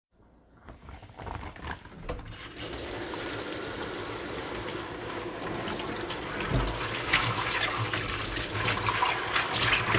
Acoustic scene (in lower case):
kitchen